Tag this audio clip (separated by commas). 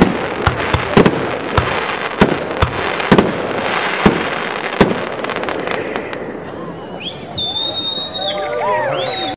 Fireworks